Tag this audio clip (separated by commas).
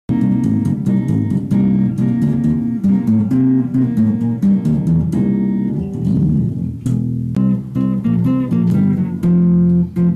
Plucked string instrument, Music, Musical instrument, Electric guitar, Tapping (guitar technique), Guitar